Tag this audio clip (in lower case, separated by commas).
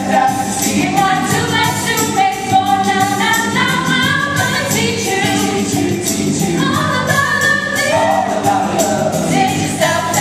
jingle (music), music